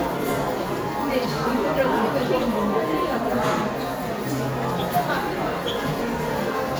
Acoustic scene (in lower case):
crowded indoor space